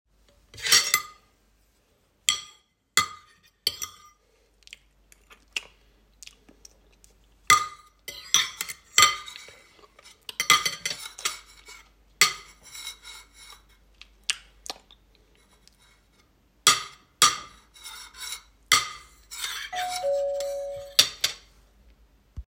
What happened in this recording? I am eating and slurping and my phone starts ringing.